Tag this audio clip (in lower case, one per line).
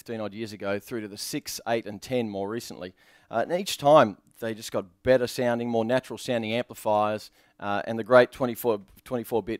speech